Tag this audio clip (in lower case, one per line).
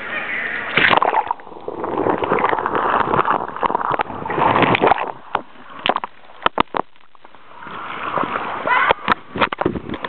canoe